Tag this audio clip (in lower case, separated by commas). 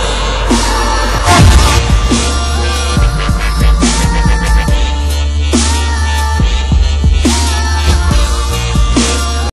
dubstep, electronic music, music